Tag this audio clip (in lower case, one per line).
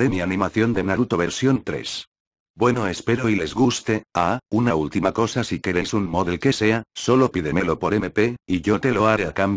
speech